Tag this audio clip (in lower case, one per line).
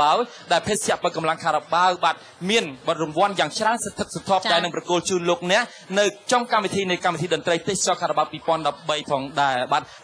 speech